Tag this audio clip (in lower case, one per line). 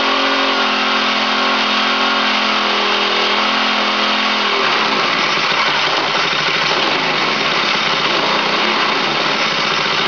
engine